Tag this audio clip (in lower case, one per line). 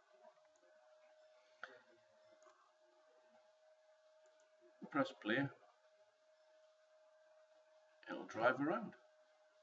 silence
speech